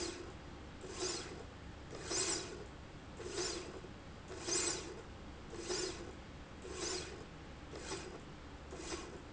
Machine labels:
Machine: slide rail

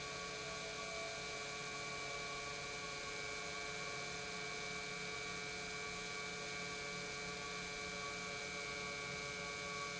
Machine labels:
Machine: pump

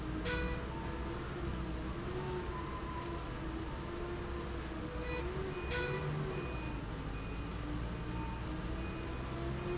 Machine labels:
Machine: slide rail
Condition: normal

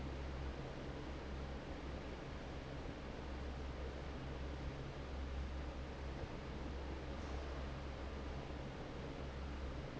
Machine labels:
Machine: fan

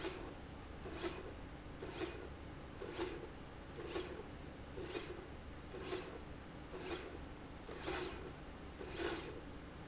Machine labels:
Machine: slide rail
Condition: normal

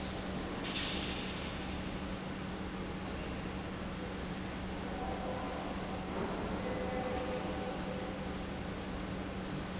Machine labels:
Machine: pump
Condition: normal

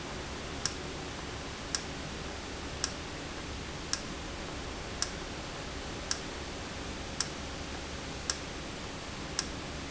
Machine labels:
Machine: valve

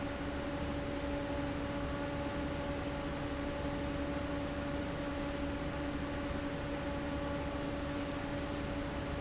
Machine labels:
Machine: fan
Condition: abnormal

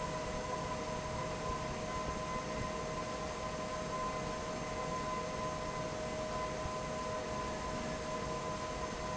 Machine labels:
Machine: fan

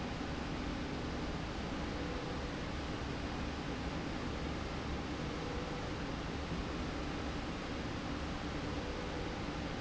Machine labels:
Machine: slide rail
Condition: normal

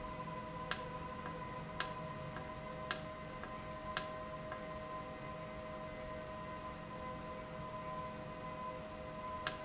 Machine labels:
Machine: valve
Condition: normal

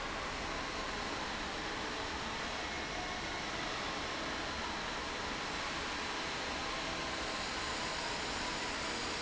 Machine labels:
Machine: fan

